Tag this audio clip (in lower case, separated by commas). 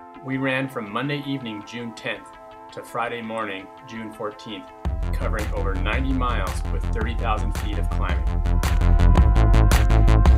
music, speech